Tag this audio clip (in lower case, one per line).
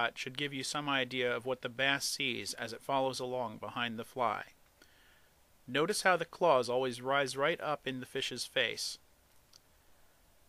speech